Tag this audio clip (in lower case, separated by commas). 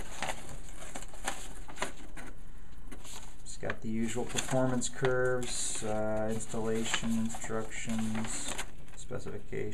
speech